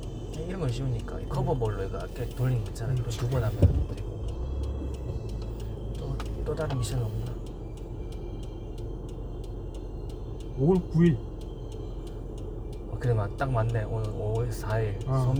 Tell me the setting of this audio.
car